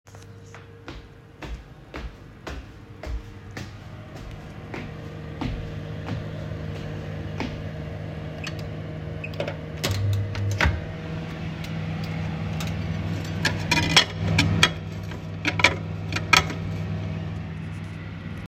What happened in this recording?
I went to the microwave in the kitchen, turned it off, and took the plate out.